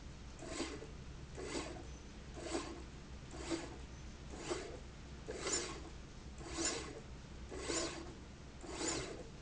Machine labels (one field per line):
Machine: slide rail